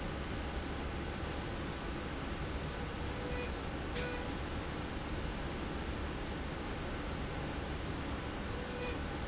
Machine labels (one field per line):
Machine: slide rail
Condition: normal